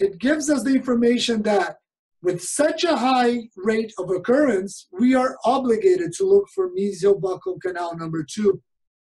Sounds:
speech

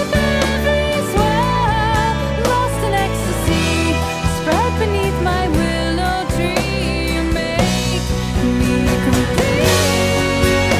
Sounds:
music

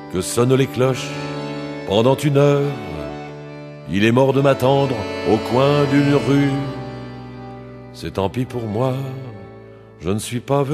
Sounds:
music, speech

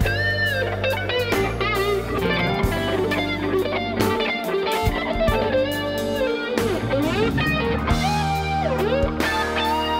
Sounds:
music, electric guitar

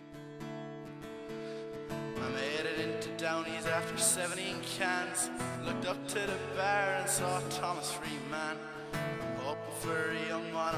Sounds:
music

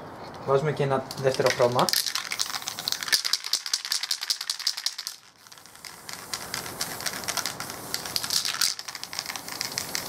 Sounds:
spray, speech

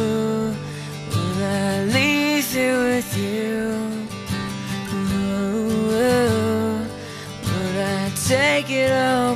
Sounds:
music

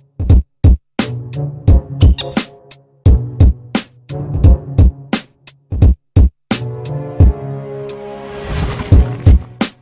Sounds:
music

